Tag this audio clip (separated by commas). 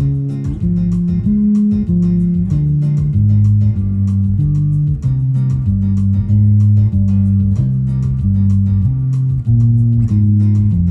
playing bass guitar